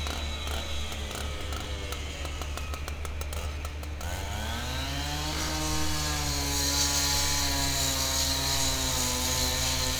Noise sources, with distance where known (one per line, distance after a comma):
chainsaw, near